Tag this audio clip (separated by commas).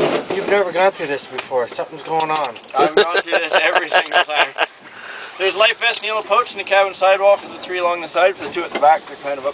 Speech